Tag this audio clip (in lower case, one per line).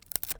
wood